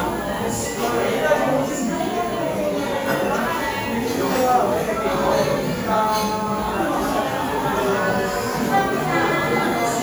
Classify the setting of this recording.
cafe